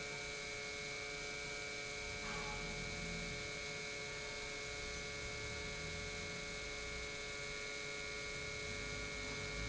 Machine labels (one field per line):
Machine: pump